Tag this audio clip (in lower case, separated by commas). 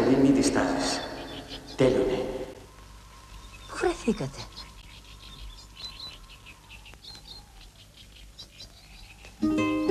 outside, rural or natural, music, speech